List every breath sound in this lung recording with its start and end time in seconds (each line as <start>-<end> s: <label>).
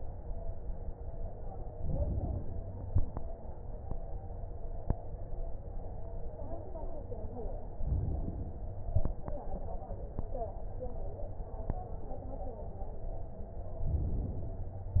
1.71-2.71 s: inhalation
7.73-8.74 s: inhalation
13.81-14.91 s: inhalation